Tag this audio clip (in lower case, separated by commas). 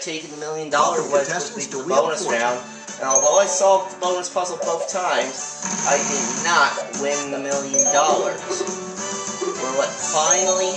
music, speech